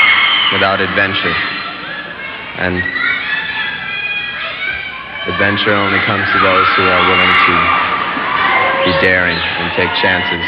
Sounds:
speech

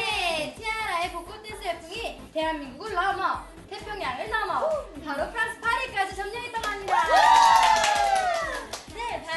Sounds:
speech

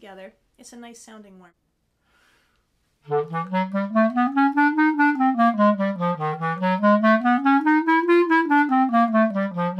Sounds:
playing clarinet

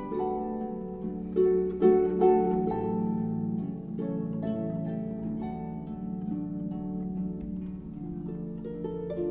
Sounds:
playing harp

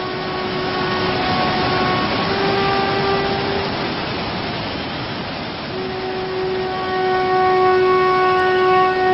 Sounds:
outside, rural or natural, music

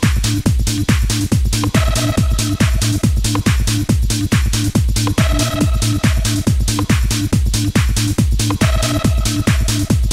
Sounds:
music, trance music, electronic music

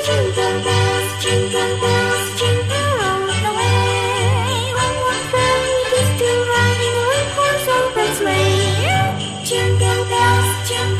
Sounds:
music, jingle (music)

